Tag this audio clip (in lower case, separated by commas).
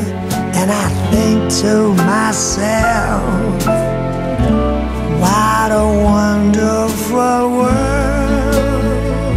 music, new-age music